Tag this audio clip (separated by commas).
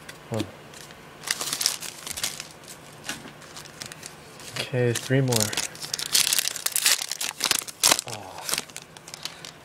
inside a small room, Speech